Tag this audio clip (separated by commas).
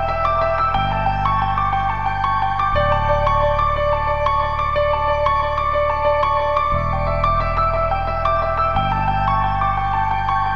Sampler, Music